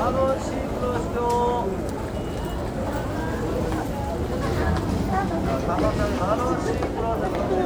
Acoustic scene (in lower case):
crowded indoor space